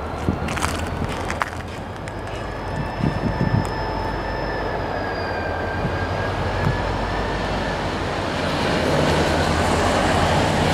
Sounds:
train
rail transport
vehicle

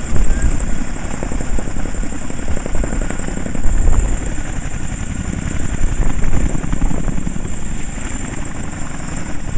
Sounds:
vehicle

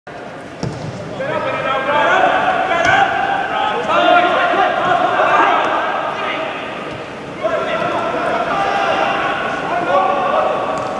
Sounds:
speech

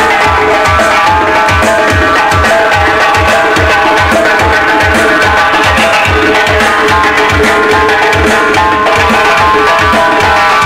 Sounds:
drum kit
musical instrument
drum
music
bass drum

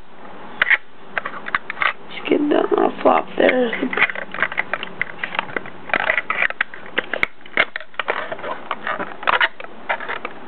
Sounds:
speech

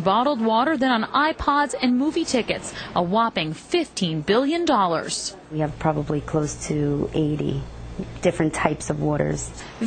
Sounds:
speech

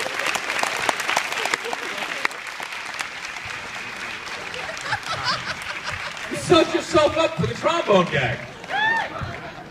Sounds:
speech
applause

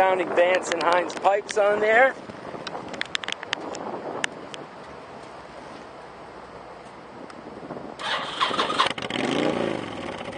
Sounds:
vehicle
speech
outside, urban or man-made

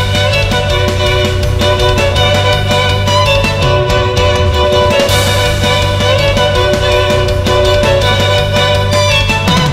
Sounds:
music
musical instrument

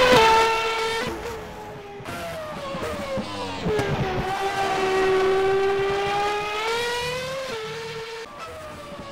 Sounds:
vehicle
motor vehicle (road)
car
car passing by

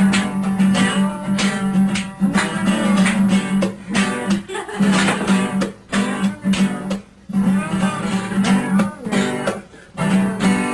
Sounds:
music

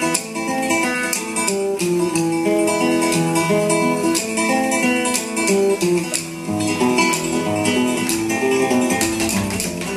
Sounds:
music
flamenco

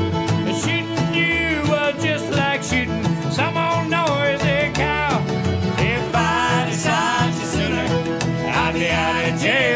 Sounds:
country
guitar
bluegrass
bowed string instrument
musical instrument
music
singing

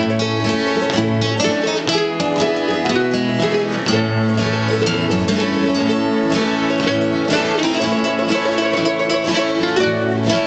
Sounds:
music

